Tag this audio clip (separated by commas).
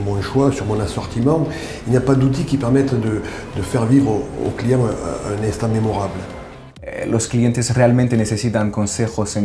Music, Speech